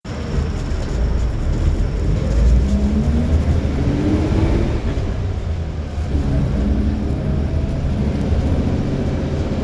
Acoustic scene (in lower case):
bus